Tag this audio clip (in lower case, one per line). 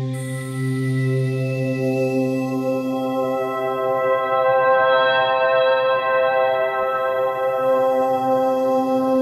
ambient music